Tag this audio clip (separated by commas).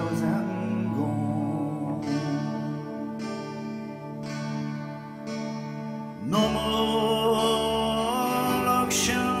Music